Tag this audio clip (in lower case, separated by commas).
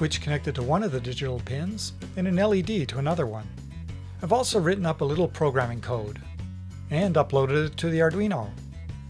music, speech